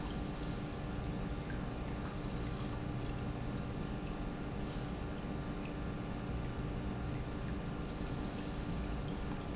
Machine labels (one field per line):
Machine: pump